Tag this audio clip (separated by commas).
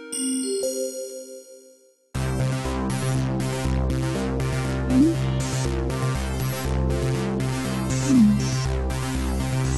Music